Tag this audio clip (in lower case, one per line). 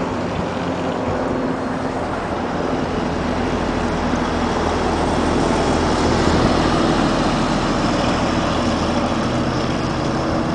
revving
vehicle